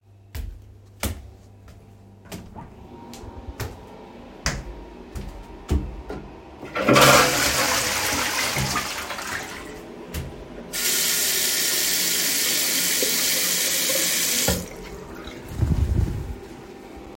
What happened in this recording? I walked into the bathroom where the air ventilator was running. I flushed the toilet and then washed my hands with running water.